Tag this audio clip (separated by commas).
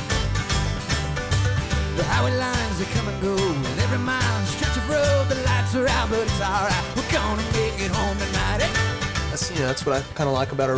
Speech, Rhythm and blues, Music